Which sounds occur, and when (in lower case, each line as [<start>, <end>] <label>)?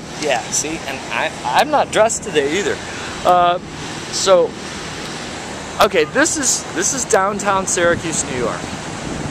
[0.00, 9.30] background noise
[0.21, 2.73] male speech
[3.23, 3.65] male speech
[4.12, 4.74] male speech
[5.73, 8.67] male speech